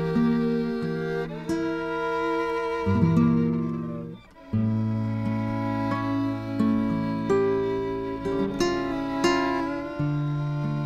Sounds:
fiddle
musical instrument
music

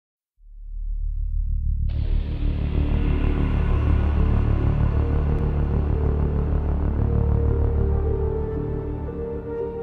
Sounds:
music
soundtrack music

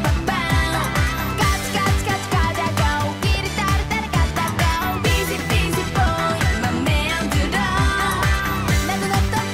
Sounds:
music

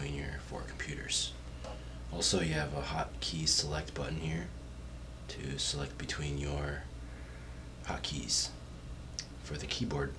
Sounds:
speech

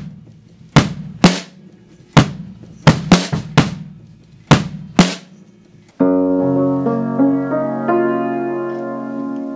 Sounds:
classical music
music

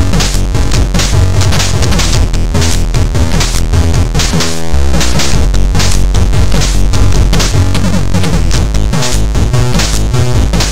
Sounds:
exciting music
music

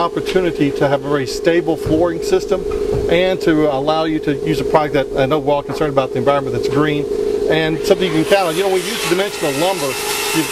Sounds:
speech

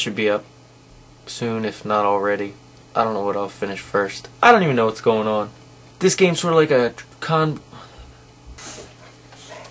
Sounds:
speech

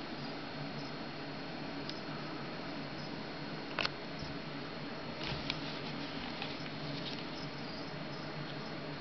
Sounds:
inside a small room

